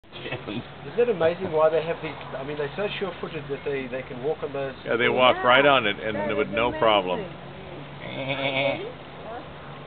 Two adult males and a female is speaking, and a male makes a goat sound